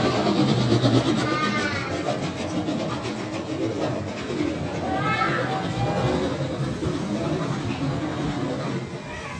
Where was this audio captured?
in a park